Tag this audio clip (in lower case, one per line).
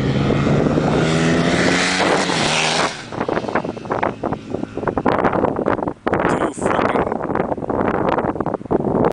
speech